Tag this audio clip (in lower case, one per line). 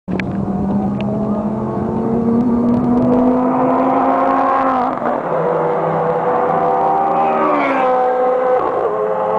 accelerating
vehicle
car